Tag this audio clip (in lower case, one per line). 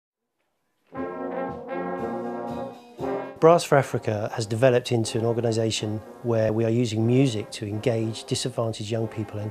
speech
music
musical instrument
brass instrument
foghorn